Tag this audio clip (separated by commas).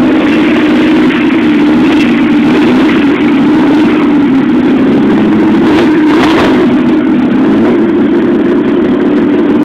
Vehicle, Truck